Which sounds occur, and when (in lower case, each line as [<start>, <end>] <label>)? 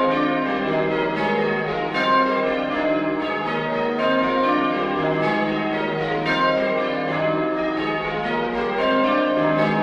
[0.00, 9.82] church bell
[0.00, 9.82] music